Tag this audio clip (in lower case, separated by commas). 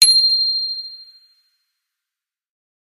bicycle bell, bicycle, bell, vehicle, alarm